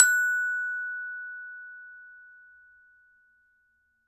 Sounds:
glockenspiel, music, percussion, musical instrument, mallet percussion

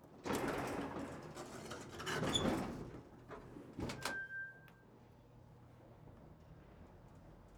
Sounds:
sliding door, door, domestic sounds

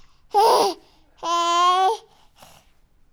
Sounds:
human voice, speech

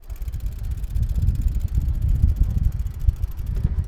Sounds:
bicycle, vehicle

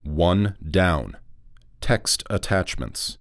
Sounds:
speech, male speech, human voice

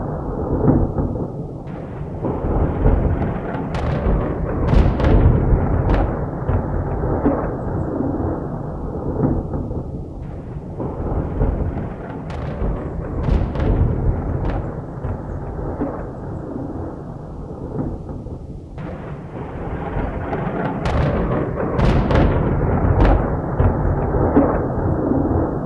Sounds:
thunderstorm, thunder

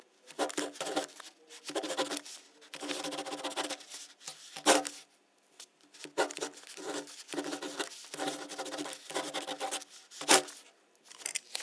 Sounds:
writing, home sounds

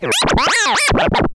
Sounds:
music, musical instrument, scratching (performance technique)

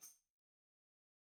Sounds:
percussion, music, tambourine, musical instrument

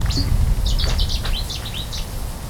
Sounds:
animal, wild animals, bird

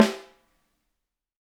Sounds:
musical instrument, music, drum, snare drum, percussion

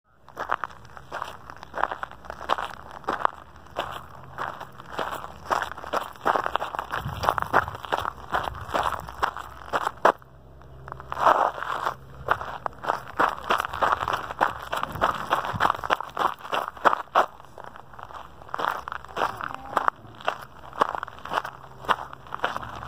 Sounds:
run

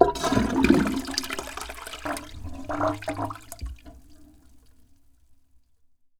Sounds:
water, toilet flush, gurgling, home sounds

